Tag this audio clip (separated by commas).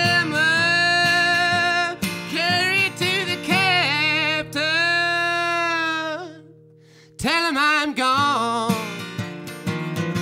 Music, Male singing